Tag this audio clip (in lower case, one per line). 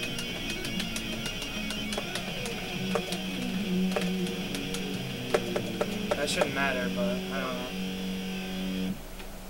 speech
plucked string instrument
music
guitar
musical instrument